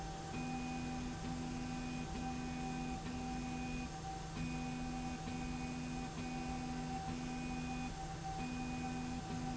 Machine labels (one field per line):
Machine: slide rail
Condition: normal